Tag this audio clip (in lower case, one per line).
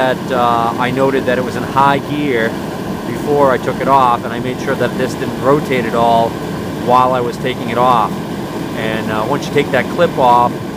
engine